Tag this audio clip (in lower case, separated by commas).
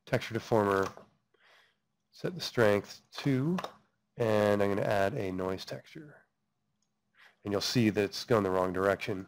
speech